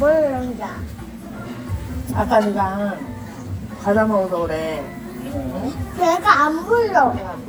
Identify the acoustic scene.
restaurant